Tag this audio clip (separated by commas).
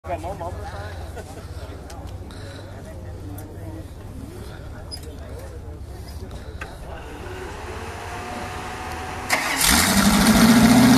Vehicle